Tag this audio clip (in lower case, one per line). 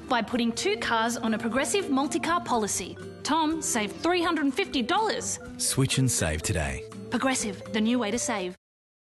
speech
music